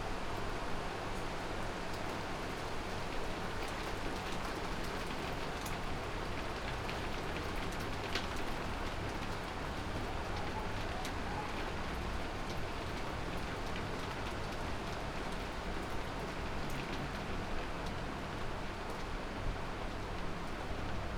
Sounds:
water
rain

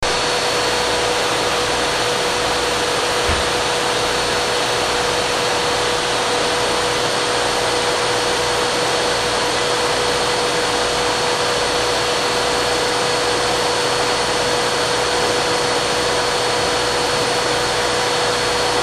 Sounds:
home sounds

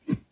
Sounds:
swish

